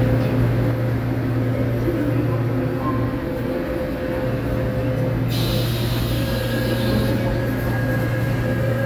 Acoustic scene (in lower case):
subway station